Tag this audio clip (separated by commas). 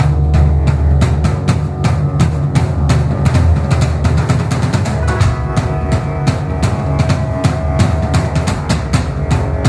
Music, Progressive rock